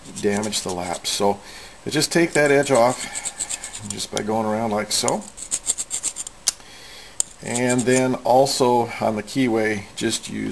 A man speaks with some scratching and sanding